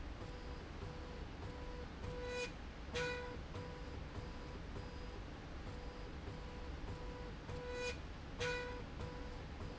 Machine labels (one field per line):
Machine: slide rail